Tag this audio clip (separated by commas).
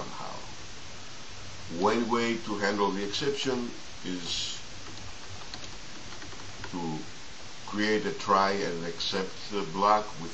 Speech